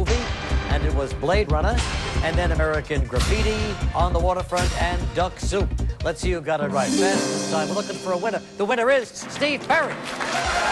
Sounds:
speech, music

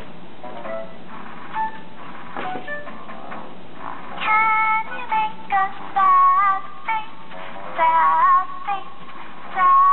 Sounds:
inside a small room, music

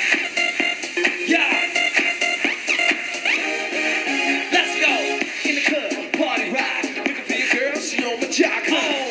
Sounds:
progressive rock, music, rock and roll

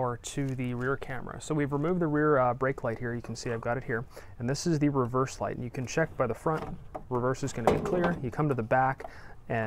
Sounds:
reversing beeps

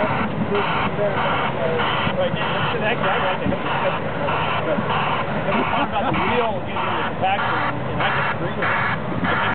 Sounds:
buzzer, speech, cacophony

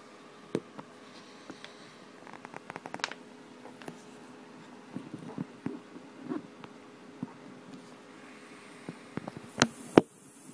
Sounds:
snake

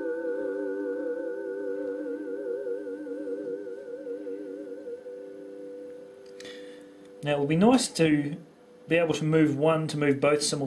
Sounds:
speech, musical instrument, sampler, music, synthesizer

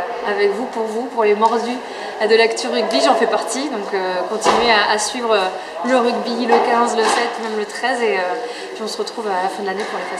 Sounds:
speech, female speech

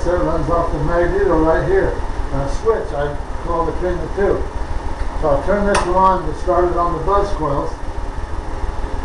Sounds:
engine, speech

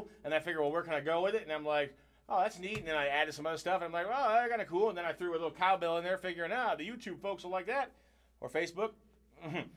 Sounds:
speech

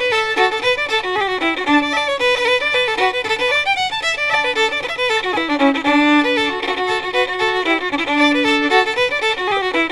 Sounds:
music, violin, musical instrument

